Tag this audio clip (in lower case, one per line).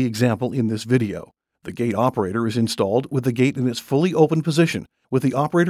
speech